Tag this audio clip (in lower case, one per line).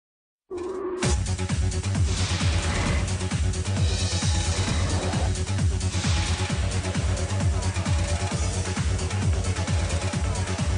inside a public space
music